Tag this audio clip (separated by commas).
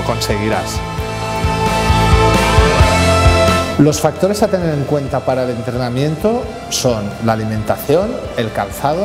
Music, Speech